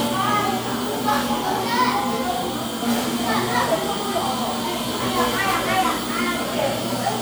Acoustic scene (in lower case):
cafe